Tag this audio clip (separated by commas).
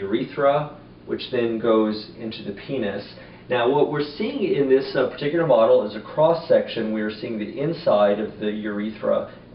Speech